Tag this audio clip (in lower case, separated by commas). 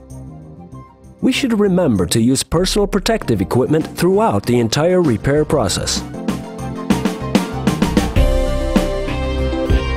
music, speech